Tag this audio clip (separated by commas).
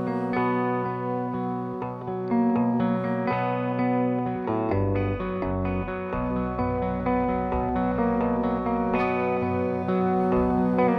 Musical instrument, Music, Effects unit, Echo, Distortion